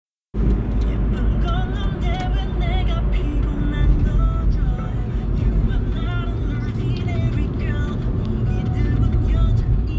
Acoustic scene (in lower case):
car